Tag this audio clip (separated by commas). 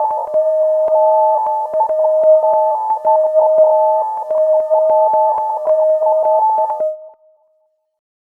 Alarm